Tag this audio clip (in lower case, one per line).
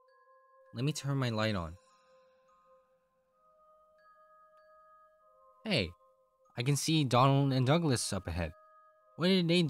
music
speech